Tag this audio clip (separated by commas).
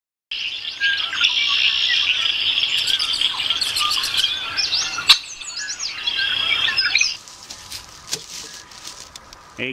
Patter